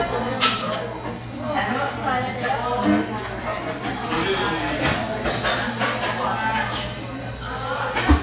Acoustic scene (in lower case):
cafe